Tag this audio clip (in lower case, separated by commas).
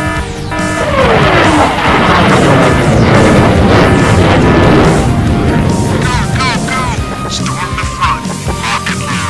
music, speech